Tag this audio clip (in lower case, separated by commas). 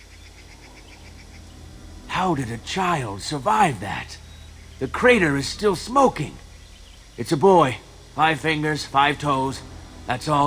music, outside, rural or natural, speech